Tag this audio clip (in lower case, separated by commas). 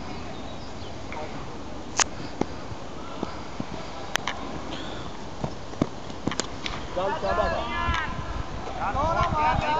speech, outside, urban or man-made